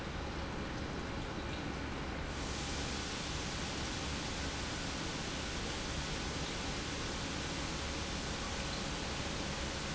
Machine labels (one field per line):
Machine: pump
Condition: normal